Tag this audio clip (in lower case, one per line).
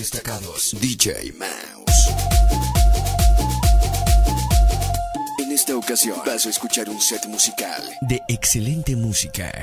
music
speech